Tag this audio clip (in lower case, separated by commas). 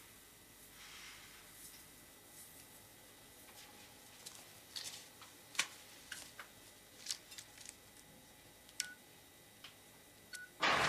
inside a small room, telephone dialing